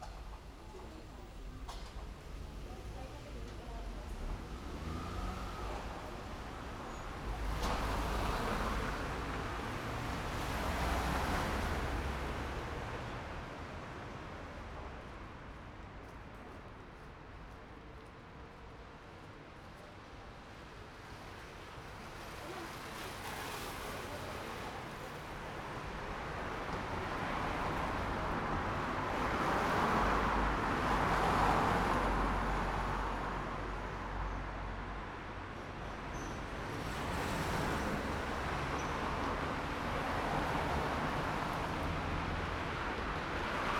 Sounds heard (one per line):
motorcycle engine idling
people talking
motorcycle
car engine accelerating
car
car wheels rolling